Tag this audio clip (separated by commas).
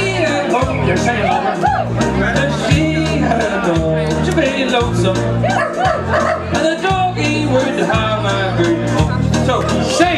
Speech, Music